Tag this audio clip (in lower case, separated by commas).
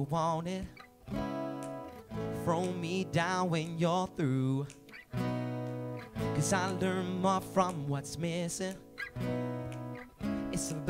music